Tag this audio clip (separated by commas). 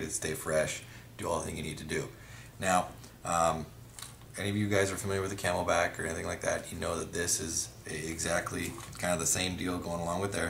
Speech